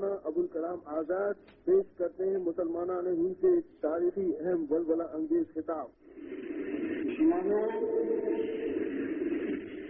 Muffled male speech